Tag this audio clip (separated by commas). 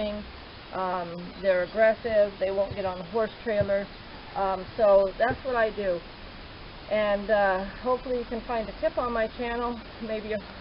Speech